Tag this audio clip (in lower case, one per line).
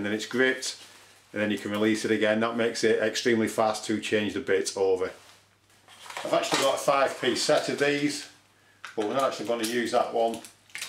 speech